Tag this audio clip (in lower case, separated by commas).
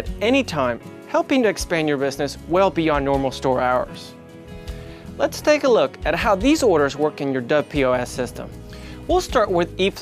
speech, music